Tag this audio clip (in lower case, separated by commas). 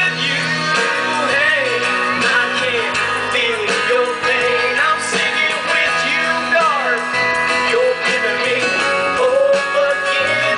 music, country, male singing